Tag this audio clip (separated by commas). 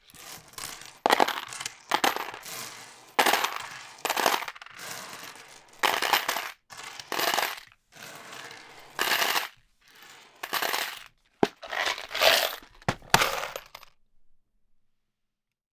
Coin (dropping), Domestic sounds